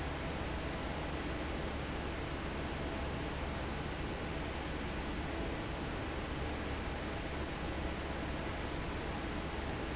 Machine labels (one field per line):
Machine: fan